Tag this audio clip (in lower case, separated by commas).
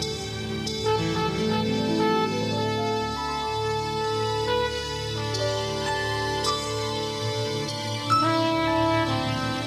soul music, music